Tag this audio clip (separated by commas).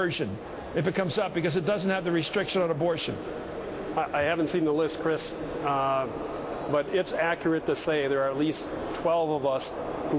Speech